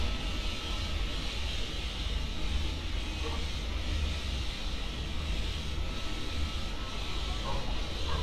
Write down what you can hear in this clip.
unidentified powered saw